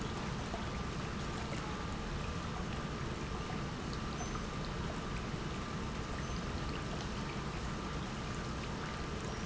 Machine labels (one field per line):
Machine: pump